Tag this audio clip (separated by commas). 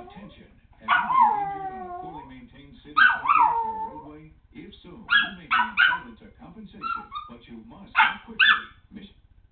Speech